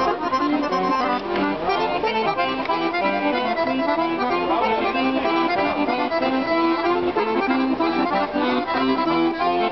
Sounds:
music, accordion

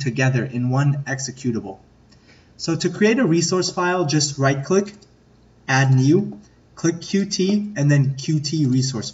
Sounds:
speech

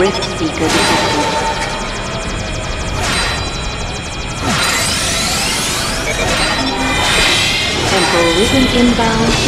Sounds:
speech

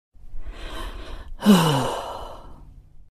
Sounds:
sigh

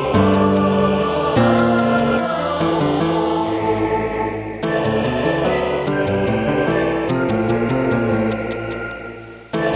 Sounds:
music

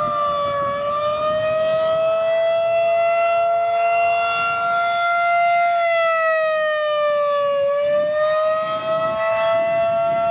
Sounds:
siren, civil defense siren

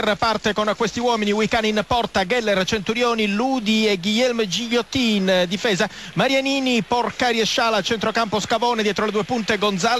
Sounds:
speech

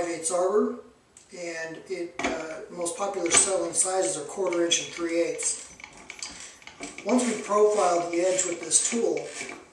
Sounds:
tools, speech

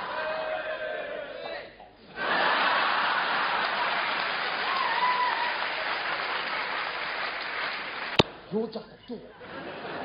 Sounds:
speech

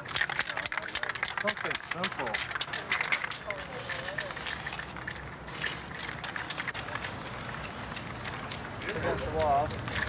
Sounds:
speech

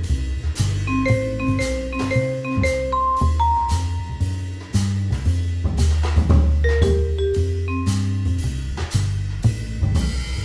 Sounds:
music, percussion

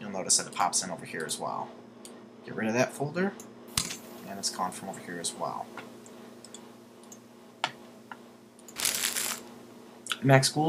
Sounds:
speech, inside a small room

